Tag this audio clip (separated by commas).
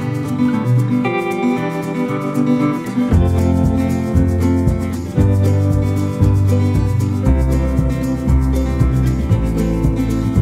Music